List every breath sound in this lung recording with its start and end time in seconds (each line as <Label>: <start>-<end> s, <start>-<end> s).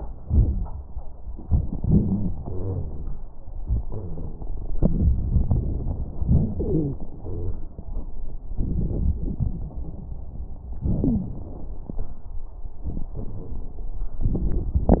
Wheeze: 1.84-3.14 s, 6.64-6.99 s, 11.03-11.38 s